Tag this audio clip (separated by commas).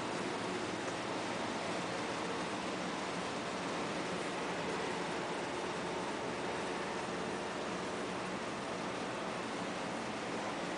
Pink noise